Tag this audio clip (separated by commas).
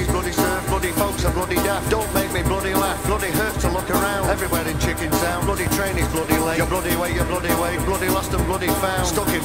Music, Swing music